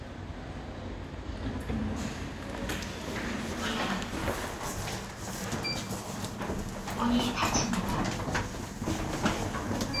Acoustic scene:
elevator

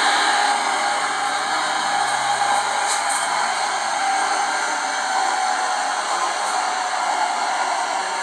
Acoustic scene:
subway train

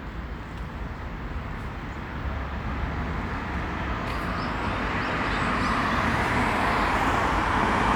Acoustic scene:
street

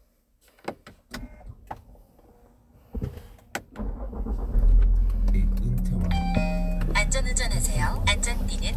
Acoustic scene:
car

